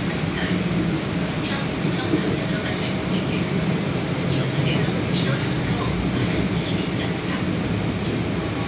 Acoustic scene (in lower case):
subway train